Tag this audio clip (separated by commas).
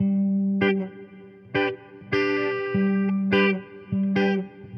Plucked string instrument, Music, Musical instrument, Guitar, Electric guitar